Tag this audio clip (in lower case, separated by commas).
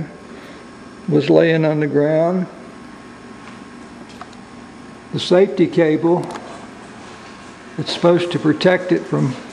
speech